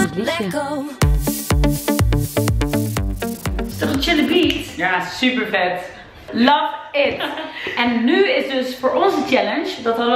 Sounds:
Speech, Music

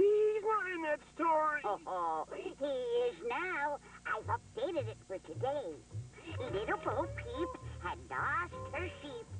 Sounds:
Speech

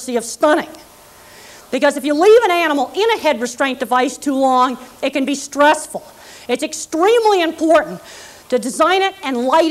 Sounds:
Speech

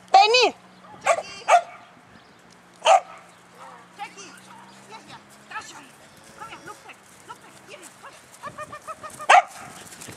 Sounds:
Speech

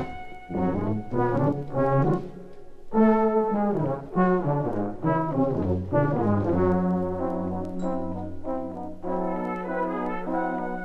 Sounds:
Brass instrument

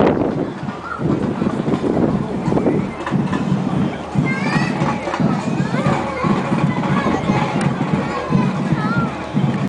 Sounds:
Wind noise (microphone), Speech

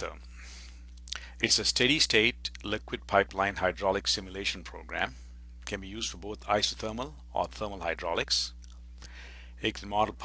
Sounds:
Speech

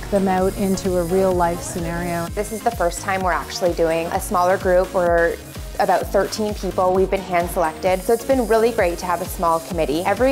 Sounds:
Speech, Music

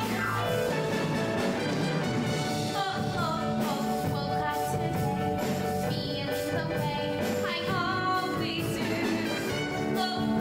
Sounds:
Music

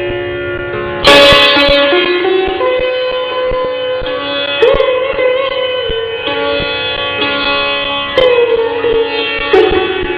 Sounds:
Musical instrument, Sitar, Music, Carnatic music, Plucked string instrument

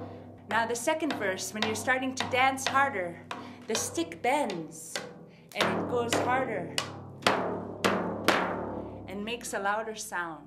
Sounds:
Speech, Echo

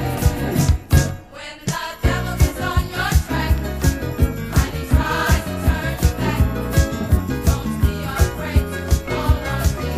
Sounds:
Choir, Singing, Soul music, Funk, Music

